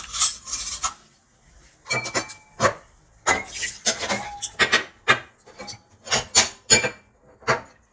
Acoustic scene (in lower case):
kitchen